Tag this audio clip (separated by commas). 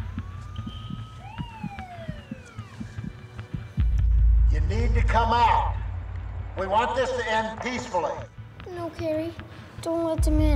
Music, Speech